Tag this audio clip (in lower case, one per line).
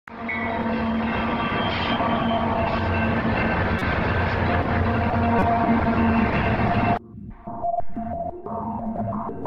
train wagon
vehicle
train
music
rail transport